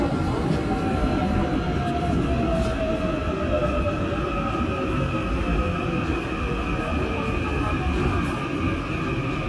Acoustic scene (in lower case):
subway train